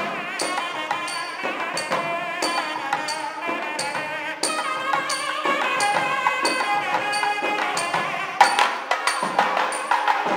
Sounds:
music, wedding music, carnatic music

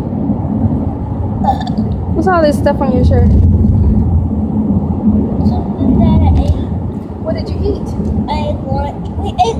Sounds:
outside, rural or natural, speech, child speech

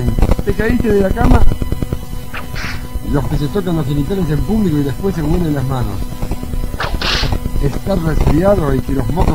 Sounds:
speech

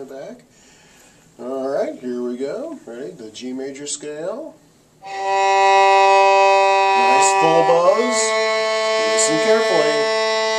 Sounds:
music, speech, violin, musical instrument

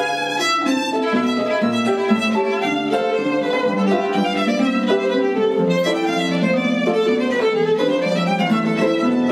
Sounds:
musical instrument, music, violin

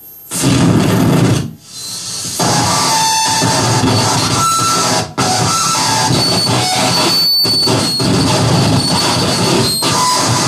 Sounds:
cacophony, white noise

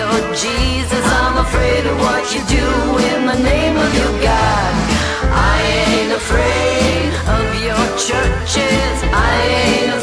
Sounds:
jingle (music)

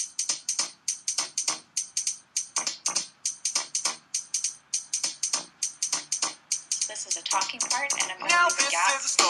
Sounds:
speech, music

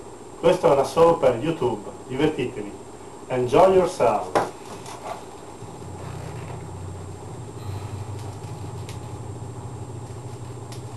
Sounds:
speech

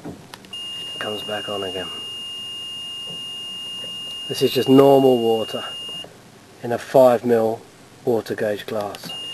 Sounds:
speech

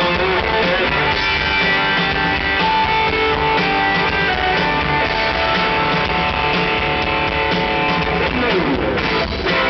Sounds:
guitar, music, plucked string instrument, electric guitar, musical instrument, playing electric guitar, acoustic guitar

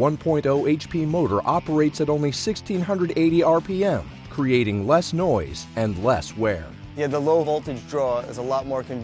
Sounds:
speech, music

